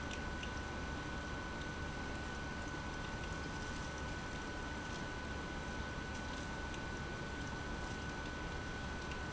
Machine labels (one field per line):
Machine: pump